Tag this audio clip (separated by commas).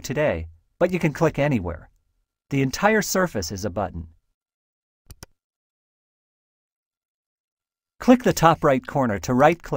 Speech